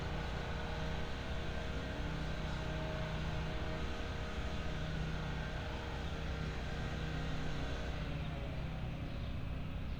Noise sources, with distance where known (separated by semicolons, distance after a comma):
engine of unclear size, near